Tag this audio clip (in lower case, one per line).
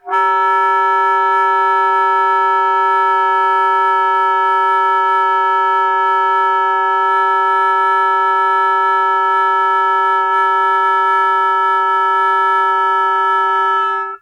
music
wind instrument
musical instrument